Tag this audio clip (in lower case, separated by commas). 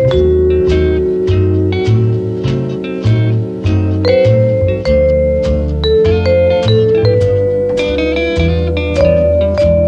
electric piano, piano, keyboard (musical)